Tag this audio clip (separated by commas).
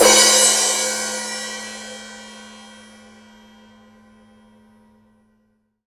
Musical instrument, Percussion, Cymbal, Crash cymbal, Music